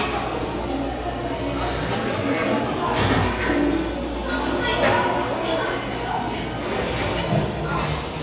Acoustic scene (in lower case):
restaurant